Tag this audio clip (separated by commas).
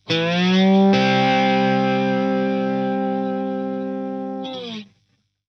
Musical instrument, Music, Plucked string instrument, Guitar